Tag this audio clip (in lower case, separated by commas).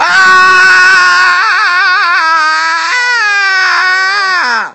human voice, screaming